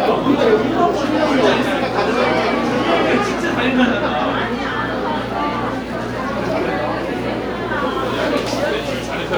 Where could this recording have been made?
in a crowded indoor space